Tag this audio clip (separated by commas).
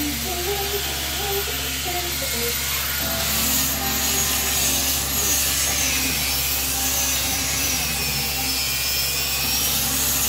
electric grinder grinding